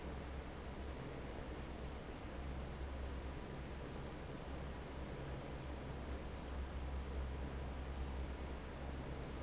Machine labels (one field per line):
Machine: fan